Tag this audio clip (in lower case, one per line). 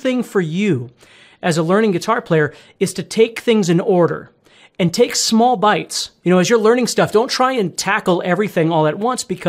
speech